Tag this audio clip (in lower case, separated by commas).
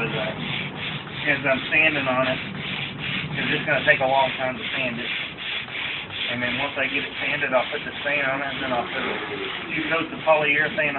speech